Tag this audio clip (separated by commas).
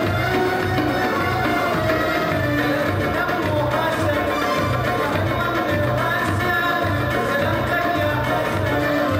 Music